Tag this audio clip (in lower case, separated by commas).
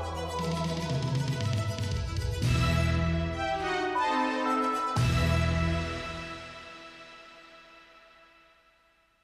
theme music, music, soundtrack music